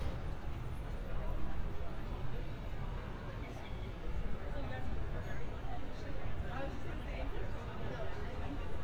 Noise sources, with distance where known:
person or small group talking, near

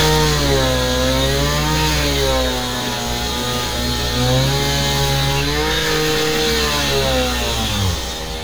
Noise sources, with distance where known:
chainsaw, near

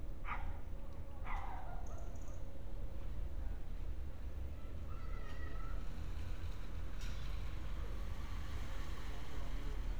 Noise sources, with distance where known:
person or small group shouting, far
dog barking or whining, far

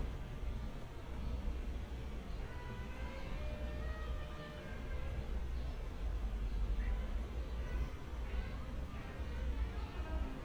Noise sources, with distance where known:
music from a fixed source, far

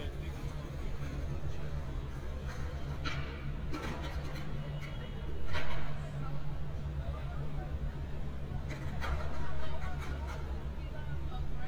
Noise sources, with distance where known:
person or small group talking

